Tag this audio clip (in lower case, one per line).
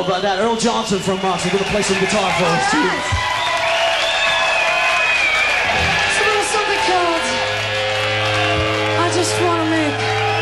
speech